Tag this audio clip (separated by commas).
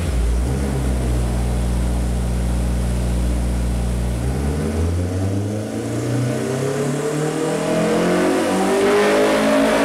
Medium engine (mid frequency), revving, Vehicle, Car